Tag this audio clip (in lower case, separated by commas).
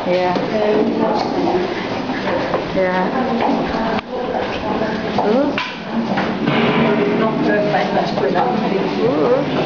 speech